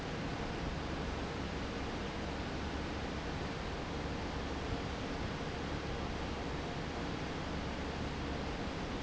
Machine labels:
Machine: fan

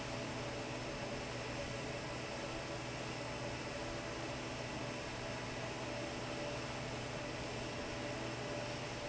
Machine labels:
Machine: fan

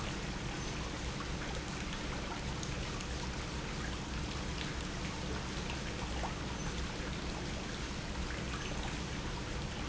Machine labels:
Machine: pump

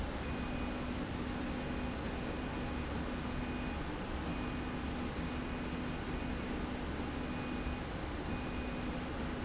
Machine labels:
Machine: slide rail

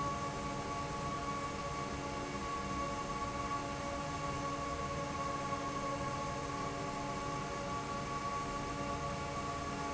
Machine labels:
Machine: fan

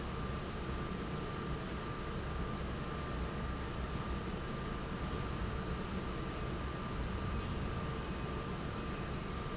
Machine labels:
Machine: fan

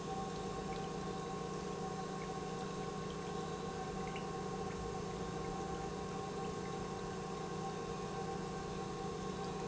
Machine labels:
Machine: pump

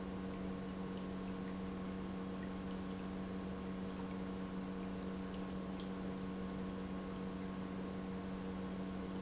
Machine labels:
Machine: pump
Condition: normal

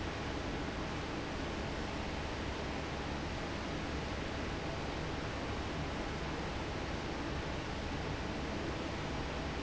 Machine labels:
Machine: fan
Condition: normal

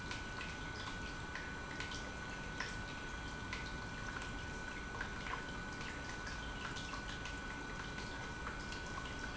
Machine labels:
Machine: pump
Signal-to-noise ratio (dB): 6 dB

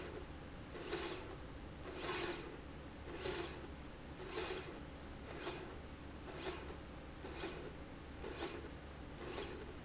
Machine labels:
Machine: slide rail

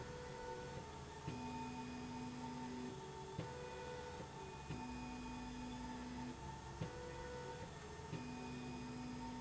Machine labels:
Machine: slide rail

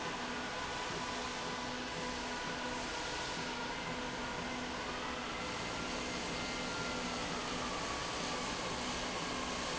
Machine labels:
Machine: slide rail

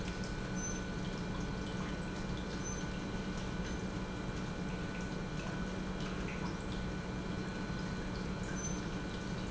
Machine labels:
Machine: pump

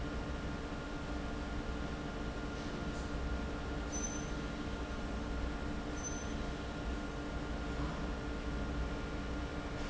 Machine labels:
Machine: fan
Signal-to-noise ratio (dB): -6 dB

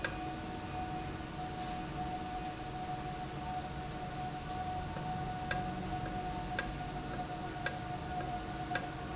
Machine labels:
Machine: valve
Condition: normal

